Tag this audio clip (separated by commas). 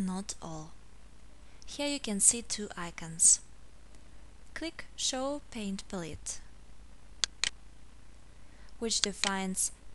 Speech